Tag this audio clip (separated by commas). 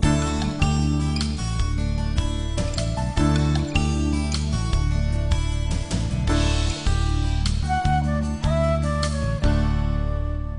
Music